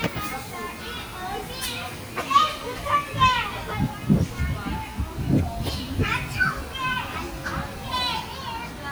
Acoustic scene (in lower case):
park